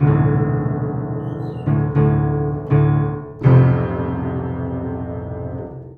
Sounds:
piano, music, musical instrument, keyboard (musical)

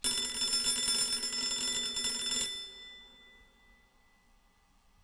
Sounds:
telephone, alarm

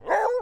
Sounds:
dog, bark, animal, domestic animals

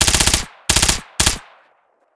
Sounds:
gunfire, explosion

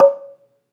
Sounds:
xylophone, musical instrument, mallet percussion, music, percussion

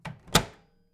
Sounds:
home sounds, microwave oven

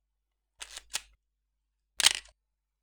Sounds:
camera, mechanisms

